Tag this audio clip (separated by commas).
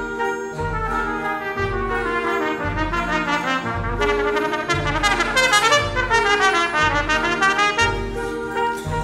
Orchestra, Trumpet, fiddle, Classical music, Musical instrument, Music